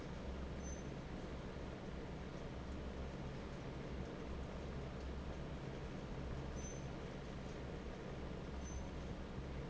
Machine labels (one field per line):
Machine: fan